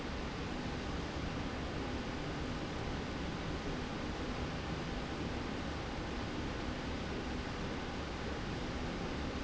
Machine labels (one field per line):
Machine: slide rail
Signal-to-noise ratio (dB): -6 dB